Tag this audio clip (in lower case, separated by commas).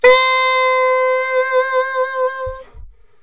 musical instrument, music, wind instrument